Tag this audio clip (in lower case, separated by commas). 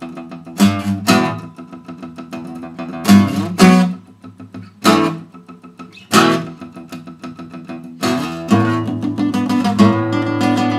guitar, music, plucked string instrument, strum, musical instrument